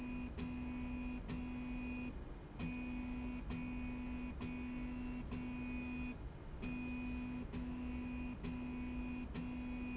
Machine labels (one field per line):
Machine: slide rail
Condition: normal